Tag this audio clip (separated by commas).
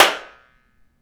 Hands, Clapping